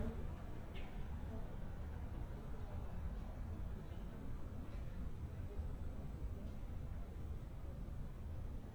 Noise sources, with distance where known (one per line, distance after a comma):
background noise